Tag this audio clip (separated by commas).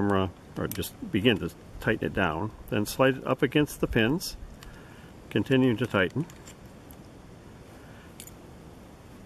Speech